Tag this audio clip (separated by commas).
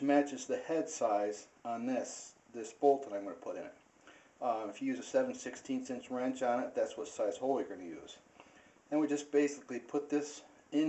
Speech